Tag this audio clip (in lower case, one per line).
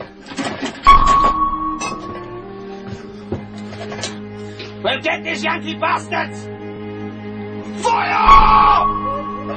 music
speech